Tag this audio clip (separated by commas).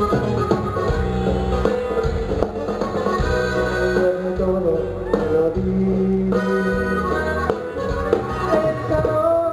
Music